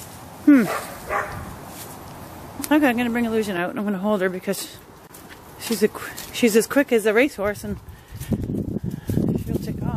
Dogs bark in the background as a woman speaks